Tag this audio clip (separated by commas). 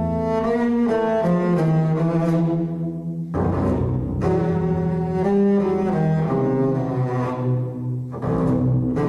playing double bass, Double bass, Music